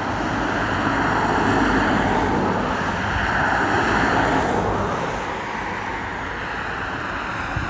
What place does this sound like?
street